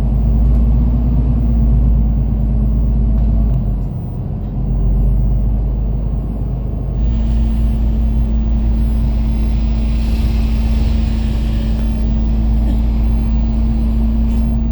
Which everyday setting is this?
bus